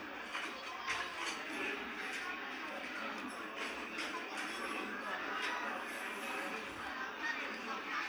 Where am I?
in a restaurant